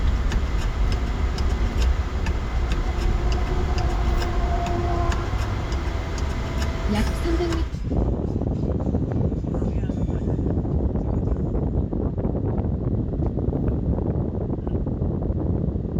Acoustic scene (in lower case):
car